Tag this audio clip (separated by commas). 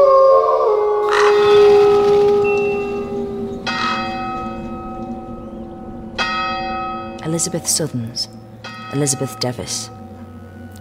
outside, rural or natural, Speech, Music